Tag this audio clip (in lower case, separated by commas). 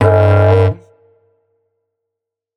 music, musical instrument